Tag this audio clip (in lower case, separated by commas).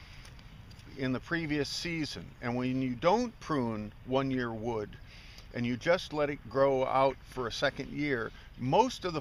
speech